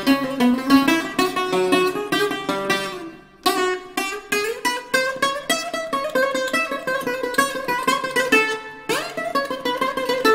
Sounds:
mandolin, music, musical instrument

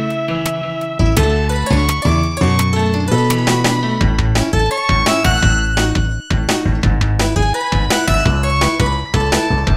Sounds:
music

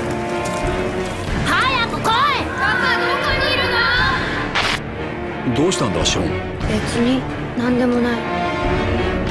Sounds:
rain

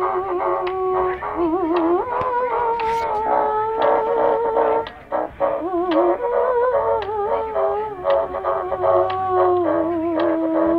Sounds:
playing bassoon

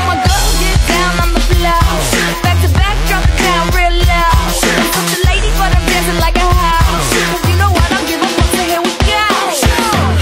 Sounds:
rimshot, bass drum, percussion, drum kit, drum roll, drum, snare drum

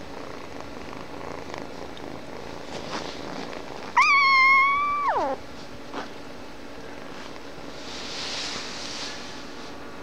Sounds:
animal, purr, cat

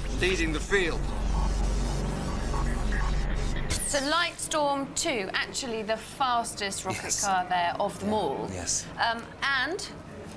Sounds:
music, speech

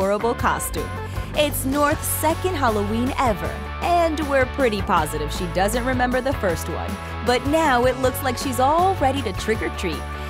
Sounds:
music, speech

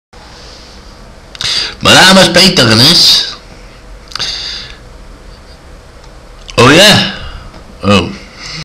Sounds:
speech

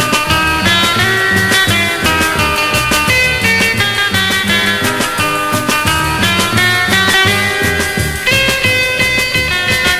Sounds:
musical instrument, violin, music

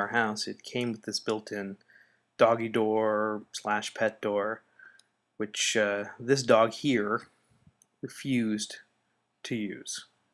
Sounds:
speech

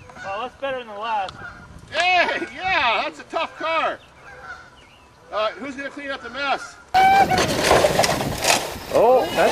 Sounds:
fowl, turkey

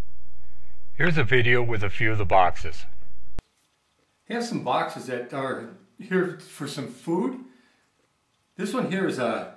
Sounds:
speech

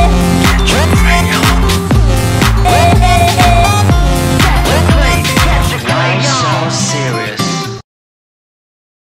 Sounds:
music, speech

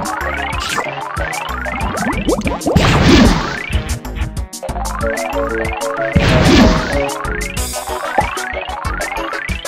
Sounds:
music, plop

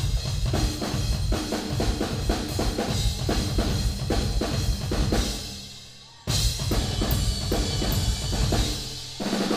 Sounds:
snare drum, drum kit, drum roll, drum, rimshot, bass drum, percussion, cymbal

